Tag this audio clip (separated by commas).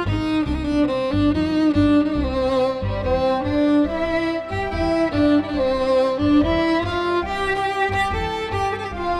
Musical instrument, Violin, Music